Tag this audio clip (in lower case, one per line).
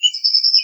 wild animals
animal
bird
bird vocalization